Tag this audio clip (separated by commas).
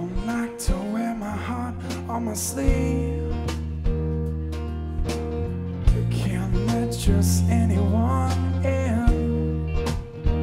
Music, Lullaby